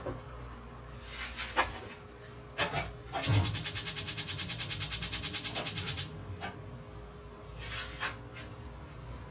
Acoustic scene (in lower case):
kitchen